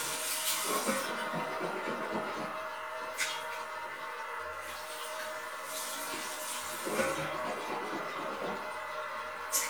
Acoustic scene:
restroom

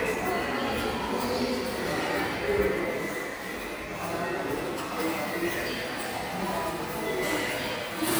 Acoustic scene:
subway station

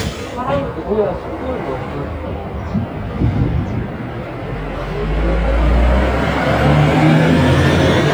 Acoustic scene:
street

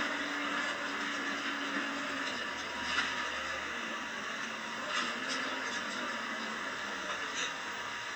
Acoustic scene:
bus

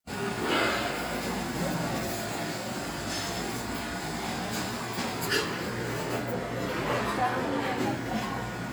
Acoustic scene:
cafe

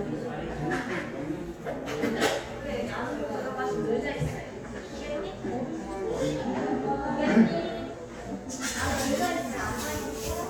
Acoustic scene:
crowded indoor space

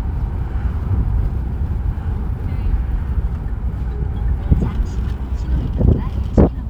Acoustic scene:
car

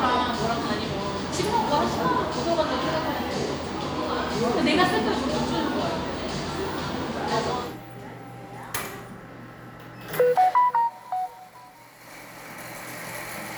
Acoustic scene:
cafe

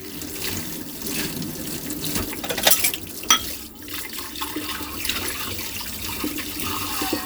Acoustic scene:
kitchen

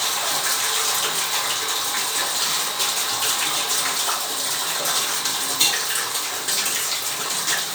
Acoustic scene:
restroom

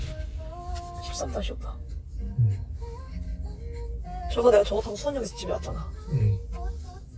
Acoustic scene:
car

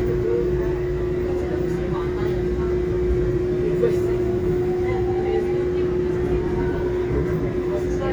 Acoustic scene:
subway train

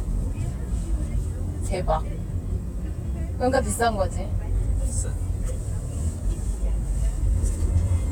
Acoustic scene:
car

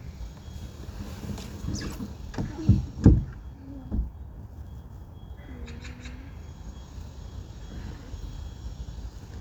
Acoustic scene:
park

